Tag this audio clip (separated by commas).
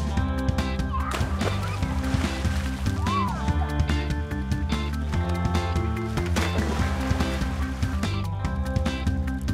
Stream, Music